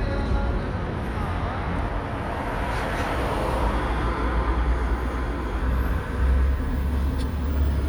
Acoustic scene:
street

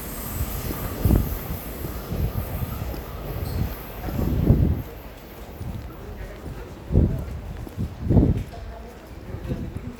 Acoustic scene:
subway station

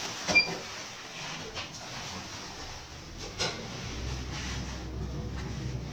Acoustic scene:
elevator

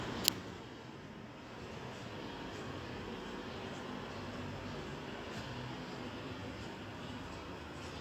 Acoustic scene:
residential area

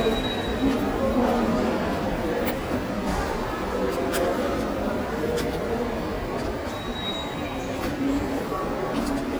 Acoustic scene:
subway station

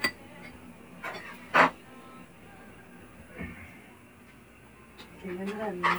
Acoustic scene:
restaurant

